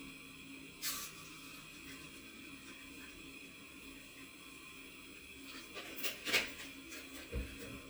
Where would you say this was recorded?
in a kitchen